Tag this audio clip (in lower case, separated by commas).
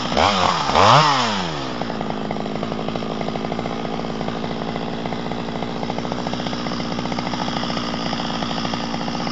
chainsaw